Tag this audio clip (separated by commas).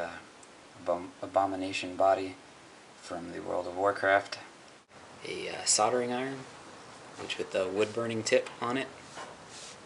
Speech